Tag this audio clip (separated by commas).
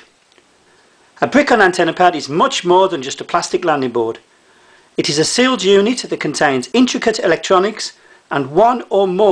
Speech